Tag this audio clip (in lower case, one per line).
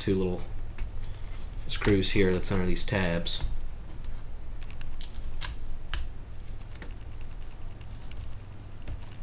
inside a small room
speech